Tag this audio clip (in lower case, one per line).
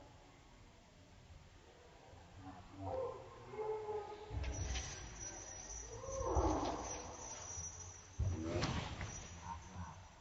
inside a large room or hall
animal
speech
dog
pets